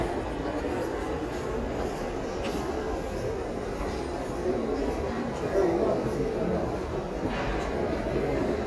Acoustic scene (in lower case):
crowded indoor space